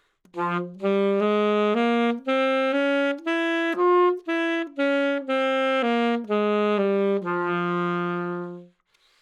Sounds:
wind instrument, musical instrument, music

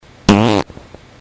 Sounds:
fart

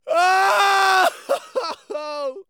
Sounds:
human voice, crying

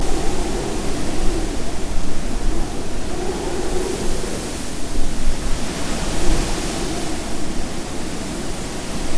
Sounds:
wind

